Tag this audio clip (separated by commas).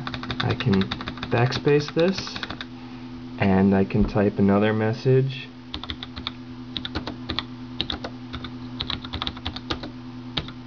Speech, Computer keyboard